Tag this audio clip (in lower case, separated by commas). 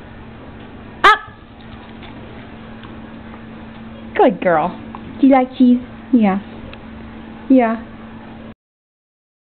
dog, pets, speech, animal